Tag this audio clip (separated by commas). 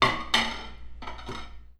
dishes, pots and pans, Domestic sounds